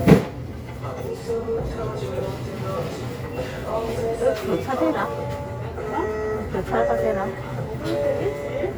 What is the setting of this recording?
crowded indoor space